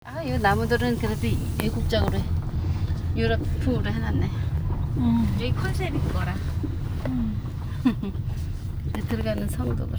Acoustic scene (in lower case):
car